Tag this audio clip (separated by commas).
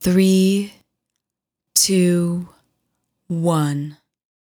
Female speech, Speech, Human voice